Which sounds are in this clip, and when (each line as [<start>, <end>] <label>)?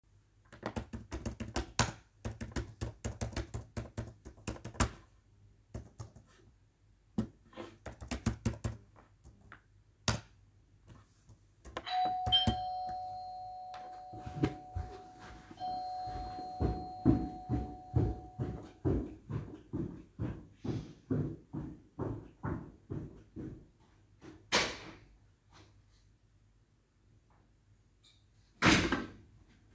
[0.64, 12.70] keyboard typing
[11.67, 18.56] bell ringing
[16.41, 23.88] footsteps
[24.28, 25.09] door
[28.55, 29.18] door